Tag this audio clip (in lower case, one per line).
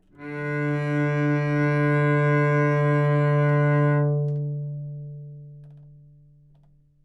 bowed string instrument
musical instrument
music